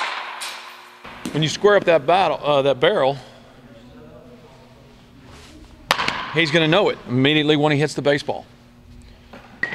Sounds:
speech

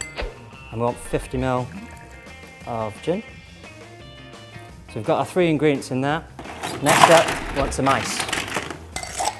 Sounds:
music
inside a small room
speech

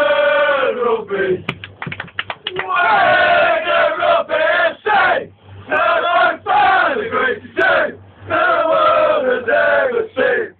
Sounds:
male singing
choir

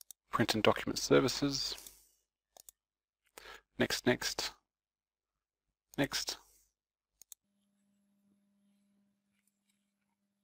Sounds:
speech

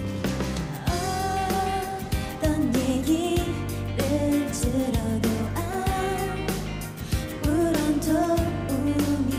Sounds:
music

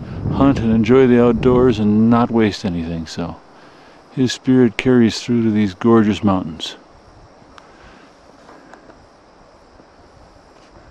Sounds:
speech

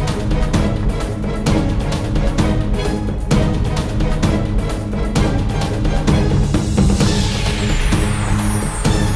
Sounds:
music

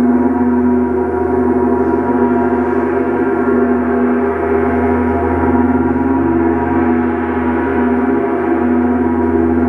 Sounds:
music

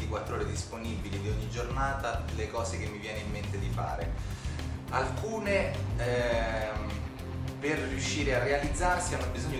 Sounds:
music
speech

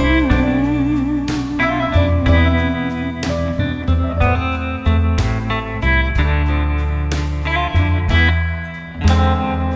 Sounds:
music
blues

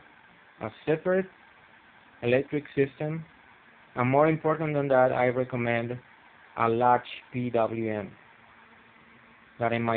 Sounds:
speech

